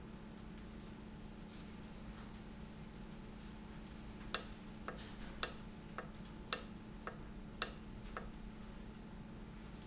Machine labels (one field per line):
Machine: valve